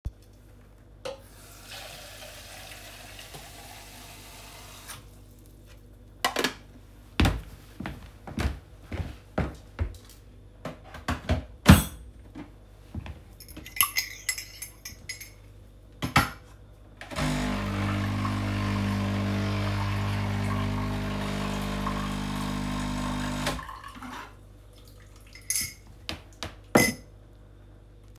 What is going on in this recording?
I turn on the sink to get water, I filled the water tank of the machine and and then I turned the water off. I walked towards the coffee machine and inserted the tank. I grabbed a cup with a spoon inside and then I made coffee into the cup. I got the cup and stir it with a spoon. I place the cup on the counter.